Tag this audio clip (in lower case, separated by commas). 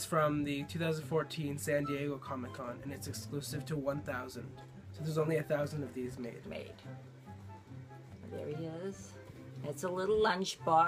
speech, music